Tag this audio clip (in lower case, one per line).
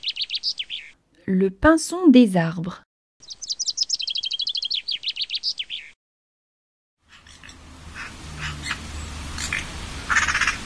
mynah bird singing